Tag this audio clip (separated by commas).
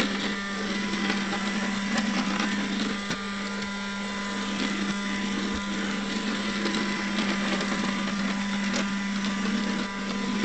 vacuum cleaner cleaning floors